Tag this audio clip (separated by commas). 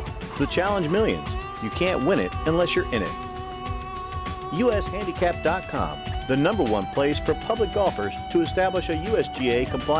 Speech, Music